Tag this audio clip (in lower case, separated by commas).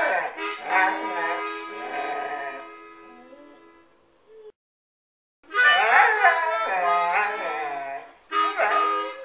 pets, whimper (dog), music, yip, dog, animal